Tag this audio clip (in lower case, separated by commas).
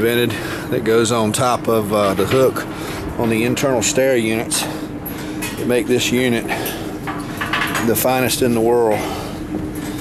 speech